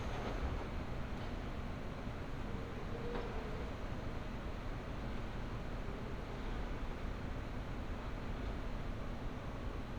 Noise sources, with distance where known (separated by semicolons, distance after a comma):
background noise